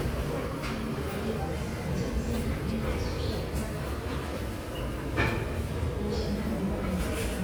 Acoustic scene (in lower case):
subway station